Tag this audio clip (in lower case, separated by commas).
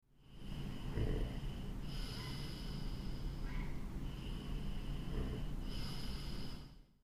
respiratory sounds, breathing